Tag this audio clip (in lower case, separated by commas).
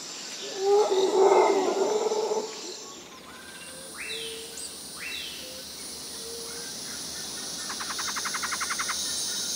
music